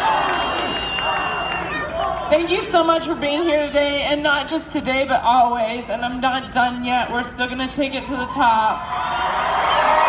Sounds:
monologue
woman speaking
speech

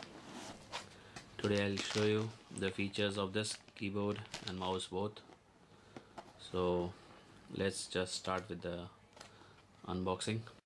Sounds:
speech

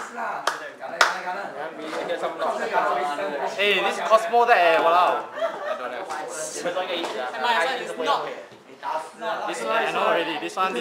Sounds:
speech

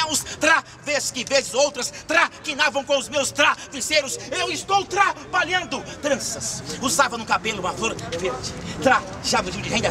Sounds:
speech

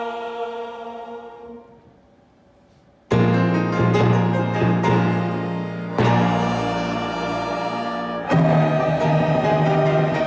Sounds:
playing tympani

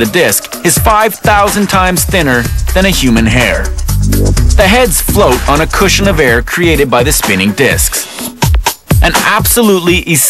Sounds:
music
speech

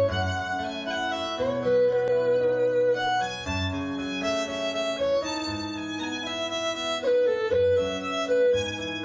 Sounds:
folk music
music

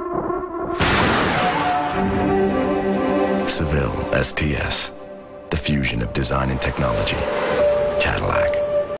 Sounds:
speech
music

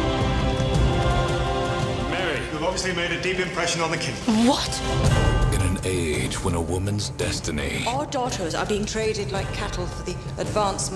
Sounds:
speech
music

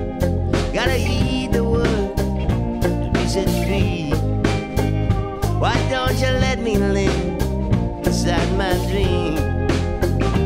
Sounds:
music
blues

